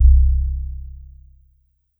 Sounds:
keyboard (musical), musical instrument, music, piano

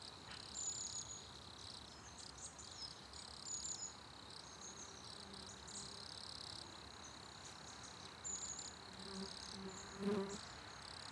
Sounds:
animal, cricket, wild animals, insect

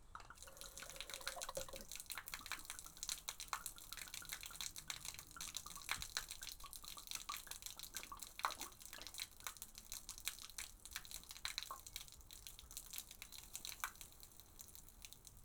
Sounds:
gurgling, water, liquid

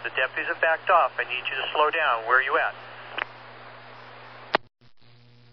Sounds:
human voice, speech

